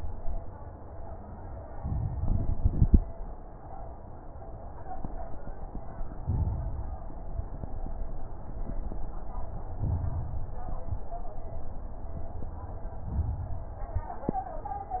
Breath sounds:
1.67-3.00 s: inhalation
1.67-3.00 s: crackles
6.23-7.24 s: inhalation
6.23-7.24 s: crackles
9.77-10.77 s: inhalation
9.77-10.77 s: crackles
10.81-11.11 s: exhalation
10.81-11.11 s: crackles
13.02-13.91 s: inhalation
13.02-13.91 s: crackles
13.95-14.25 s: exhalation
13.95-14.25 s: crackles

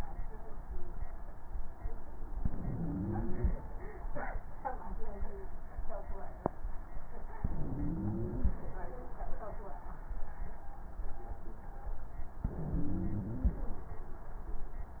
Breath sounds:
2.34-3.55 s: inhalation
2.60-3.55 s: stridor
7.41-8.59 s: inhalation
7.66-8.59 s: stridor
12.45-13.68 s: inhalation
12.62-13.55 s: stridor

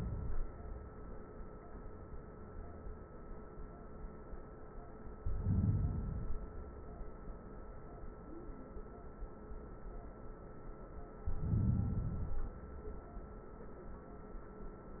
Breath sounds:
5.13-6.10 s: inhalation
6.15-7.14 s: exhalation
11.20-12.09 s: inhalation
12.09-13.73 s: exhalation

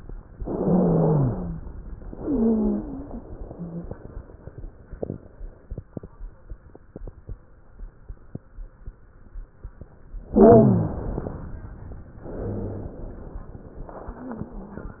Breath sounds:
0.40-1.54 s: inhalation
0.40-1.54 s: wheeze
2.07-3.21 s: exhalation
2.07-3.21 s: wheeze
10.32-10.97 s: wheeze
10.32-11.46 s: inhalation
12.22-13.55 s: exhalation

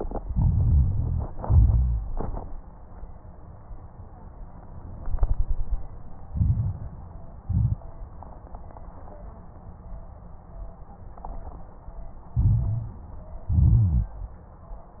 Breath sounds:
0.24-1.38 s: inhalation
0.24-1.38 s: crackles
1.41-2.07 s: exhalation
1.41-2.07 s: crackles
6.33-7.07 s: inhalation
6.33-7.07 s: crackles
7.43-7.87 s: exhalation
7.43-7.87 s: crackles
12.35-13.11 s: inhalation
12.35-13.11 s: crackles
13.49-14.17 s: exhalation
13.49-14.17 s: crackles

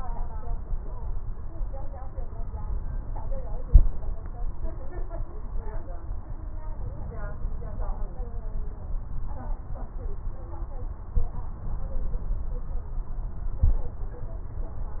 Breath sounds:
No breath sounds were labelled in this clip.

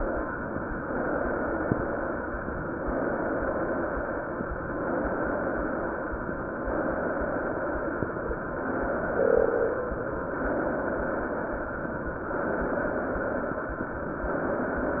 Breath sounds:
0.82-2.22 s: inhalation
2.78-4.34 s: inhalation
4.72-6.29 s: inhalation
6.69-8.25 s: inhalation
8.39-9.95 s: inhalation
10.31-11.87 s: inhalation
12.28-13.84 s: inhalation
14.30-15.00 s: inhalation

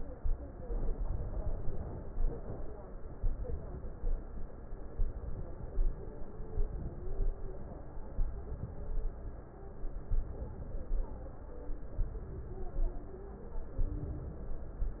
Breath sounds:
0.21-0.92 s: inhalation
0.92-1.82 s: exhalation
3.21-3.98 s: inhalation
3.98-4.62 s: exhalation
4.95-5.72 s: inhalation
5.72-6.32 s: exhalation
6.55-7.21 s: inhalation
7.21-7.81 s: exhalation
8.12-8.72 s: inhalation
8.72-9.20 s: exhalation
10.12-10.90 s: inhalation
10.90-11.67 s: exhalation
12.01-12.78 s: inhalation
12.78-13.47 s: exhalation
13.79-14.61 s: inhalation
14.61-15.00 s: exhalation

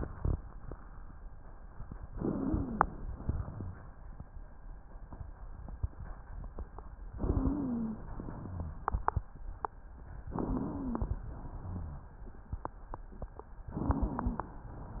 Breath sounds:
2.13-3.11 s: inhalation
2.13-3.11 s: wheeze
3.11-3.85 s: exhalation
7.16-8.10 s: inhalation
7.16-8.10 s: wheeze
8.18-8.92 s: exhalation
8.39-8.92 s: wheeze
10.34-11.25 s: inhalation
10.34-11.25 s: wheeze
11.27-12.18 s: exhalation
11.59-12.18 s: wheeze
13.74-14.63 s: inhalation
13.74-14.63 s: wheeze

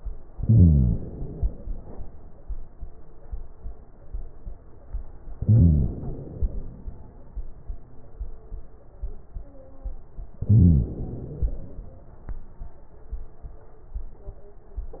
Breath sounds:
0.32-1.65 s: inhalation
0.32-1.65 s: crackles
5.43-6.76 s: inhalation
5.43-6.76 s: crackles
10.49-11.82 s: inhalation
10.49-11.82 s: crackles

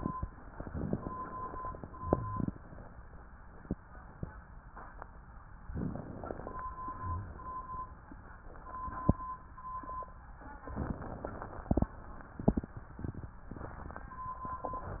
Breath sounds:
0.48-1.80 s: inhalation
1.80-2.54 s: exhalation
1.94-2.52 s: rhonchi
5.70-6.66 s: inhalation
6.82-7.40 s: exhalation
6.90-7.40 s: rhonchi
10.70-11.64 s: inhalation

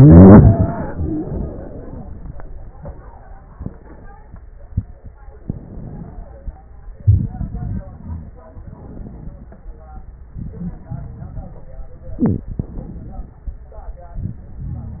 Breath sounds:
5.47-6.53 s: inhalation
7.01-8.41 s: exhalation
7.01-8.41 s: crackles
8.57-10.01 s: inhalation
10.39-11.69 s: exhalation
12.49-13.38 s: inhalation
12.49-13.38 s: crackles
14.17-15.00 s: exhalation
14.17-15.00 s: crackles

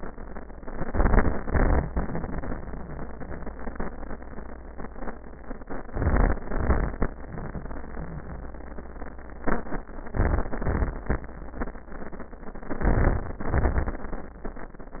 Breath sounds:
0.72-1.43 s: inhalation
0.72-1.43 s: crackles
1.45-3.51 s: exhalation
1.45-3.51 s: crackles
5.75-6.44 s: inhalation
5.75-6.44 s: crackles
6.47-7.17 s: exhalation
6.47-7.17 s: crackles
10.10-10.71 s: inhalation
10.10-10.71 s: crackles
10.72-11.33 s: exhalation
10.72-11.33 s: crackles
12.78-13.39 s: inhalation
12.78-13.39 s: crackles
13.42-14.13 s: exhalation
13.42-14.13 s: crackles

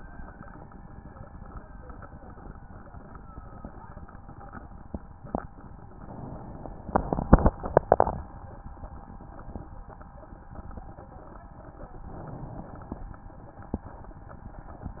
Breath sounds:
5.89-6.93 s: inhalation
12.06-13.11 s: inhalation

